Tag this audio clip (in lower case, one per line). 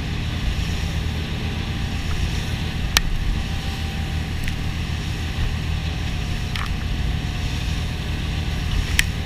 vehicle